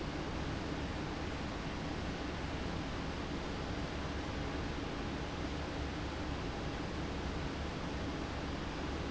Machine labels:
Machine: fan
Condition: abnormal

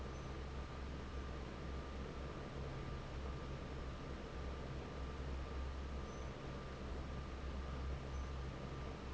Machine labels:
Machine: fan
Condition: normal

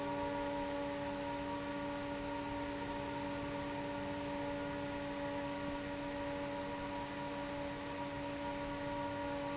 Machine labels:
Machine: fan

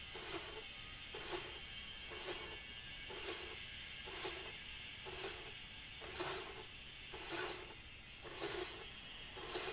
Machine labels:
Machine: slide rail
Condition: normal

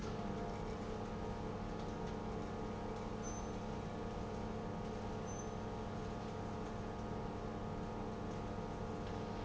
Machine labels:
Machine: pump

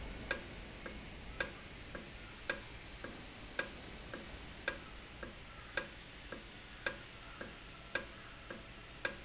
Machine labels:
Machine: valve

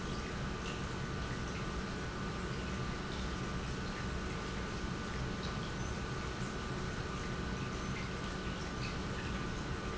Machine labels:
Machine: pump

